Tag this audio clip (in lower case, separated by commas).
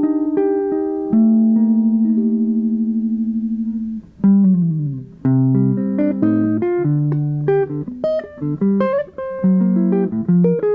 music, lullaby